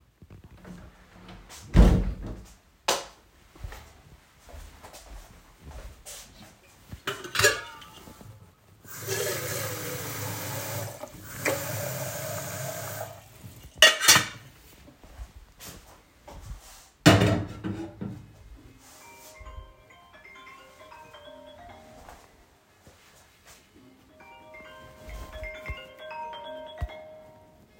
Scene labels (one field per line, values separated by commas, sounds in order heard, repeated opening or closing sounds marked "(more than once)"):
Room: kitchen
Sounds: door, light switch, footsteps, cutlery and dishes, running water, phone ringing